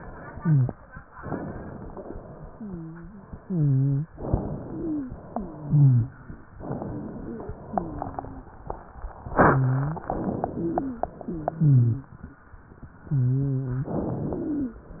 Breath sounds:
0.32-0.72 s: wheeze
1.20-2.23 s: inhalation
2.47-3.29 s: wheeze
3.39-4.12 s: wheeze
4.13-5.16 s: inhalation
4.68-5.16 s: wheeze
5.26-6.14 s: wheeze
6.62-7.57 s: inhalation
7.27-7.57 s: wheeze
7.65-8.47 s: exhalation
7.65-8.47 s: wheeze
9.36-10.04 s: wheeze
10.02-11.06 s: inhalation
10.56-11.06 s: wheeze
11.22-12.13 s: wheeze
13.05-13.96 s: wheeze
13.85-14.76 s: inhalation
14.31-14.76 s: wheeze

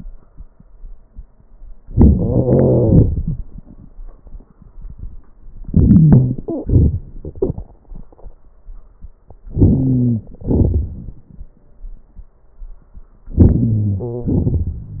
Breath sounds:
1.87-3.05 s: wheeze
1.88-3.06 s: inhalation
3.06-3.90 s: exhalation
5.65-6.38 s: wheeze
5.65-7.16 s: inhalation
6.49-7.22 s: stridor
9.52-10.24 s: inhalation
9.52-10.24 s: wheeze
10.25-11.68 s: exhalation
13.35-14.28 s: inhalation
13.69-14.36 s: wheeze
14.27-15.00 s: exhalation

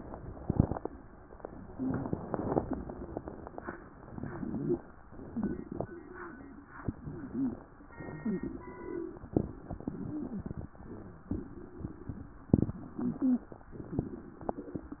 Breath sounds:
3.95-4.86 s: inhalation
5.05-5.96 s: exhalation
6.83-7.65 s: inhalation
8.16-8.48 s: wheeze
8.16-9.22 s: exhalation
9.83-10.68 s: inhalation
10.06-10.55 s: wheeze
11.33-12.18 s: exhalation
12.81-13.62 s: inhalation
12.88-13.49 s: wheeze

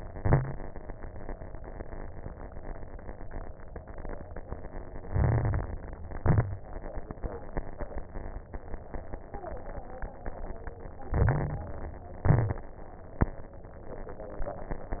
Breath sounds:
0.00-0.53 s: exhalation
0.00-0.53 s: crackles
5.07-5.89 s: inhalation
5.07-5.89 s: crackles
6.06-6.71 s: exhalation
6.06-6.71 s: crackles
11.08-12.04 s: inhalation
11.08-12.04 s: crackles
12.22-12.71 s: exhalation
12.22-12.71 s: crackles

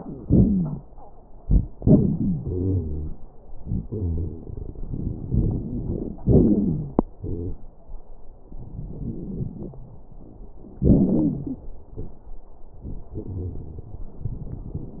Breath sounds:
0.20-0.85 s: wheeze
1.77-3.18 s: wheeze
3.61-4.43 s: wheeze
4.84-6.15 s: inhalation
4.84-6.15 s: crackles
6.24-7.07 s: exhalation
6.24-7.07 s: wheeze
7.22-7.61 s: wheeze
10.84-11.59 s: wheeze

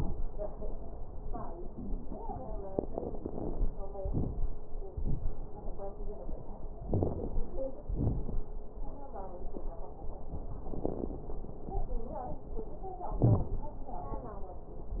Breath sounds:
4.05-4.54 s: inhalation
4.05-4.54 s: crackles
4.97-5.46 s: exhalation
4.97-5.46 s: crackles
6.93-7.28 s: wheeze
6.93-7.48 s: inhalation
7.91-8.43 s: exhalation
7.91-8.43 s: crackles
13.21-13.45 s: wheeze

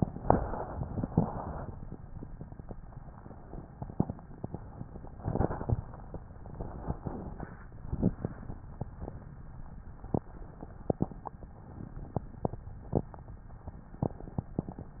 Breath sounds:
0.00-1.07 s: inhalation
1.06-1.83 s: exhalation
5.13-6.18 s: inhalation
6.30-7.64 s: exhalation

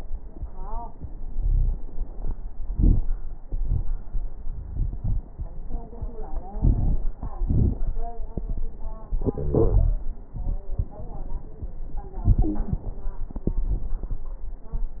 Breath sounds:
1.35-1.76 s: wheeze
6.60-7.01 s: inhalation
6.60-7.01 s: crackles
7.48-7.89 s: exhalation
7.48-7.89 s: crackles
9.37-9.97 s: wheeze

